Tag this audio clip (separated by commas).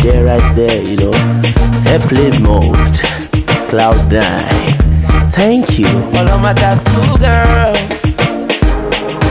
Music, Afrobeat